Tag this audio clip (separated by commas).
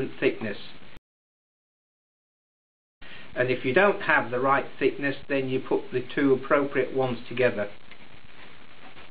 Speech